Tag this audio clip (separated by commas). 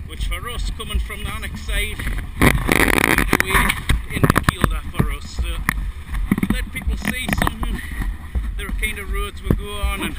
Speech